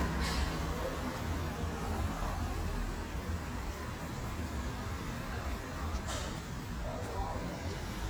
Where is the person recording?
in a residential area